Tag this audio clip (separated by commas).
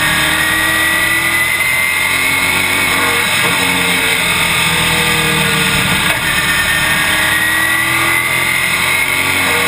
Motor vehicle (road), Vehicle, Car